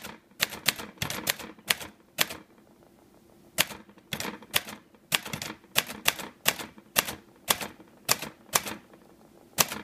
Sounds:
typing on typewriter

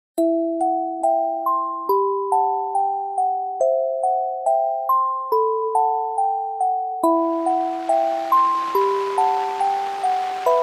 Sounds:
music

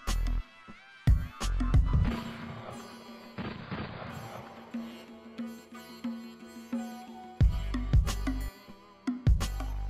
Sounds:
music

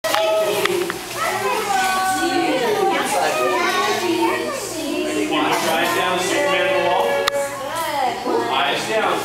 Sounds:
speech

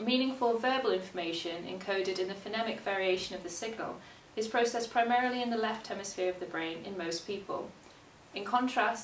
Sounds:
speech
narration
female speech

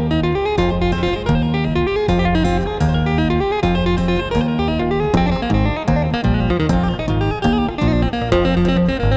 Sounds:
music

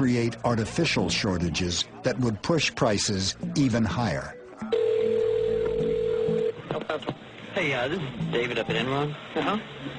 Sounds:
dtmf

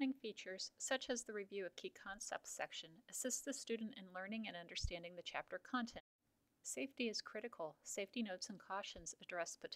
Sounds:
speech

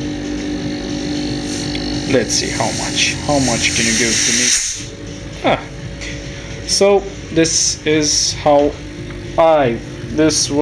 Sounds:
speech

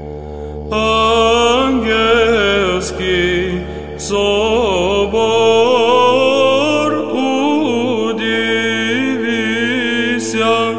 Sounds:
mantra
music

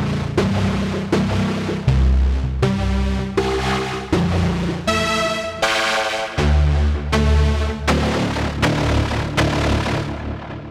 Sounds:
music
musical instrument
synthesizer

